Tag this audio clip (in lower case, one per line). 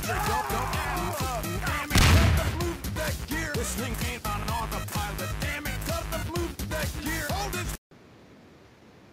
music